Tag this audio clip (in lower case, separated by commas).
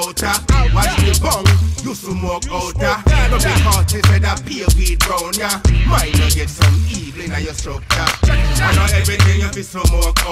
music, hip hop music